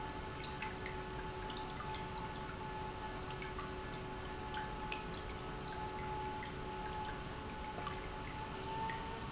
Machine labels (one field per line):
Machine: pump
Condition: normal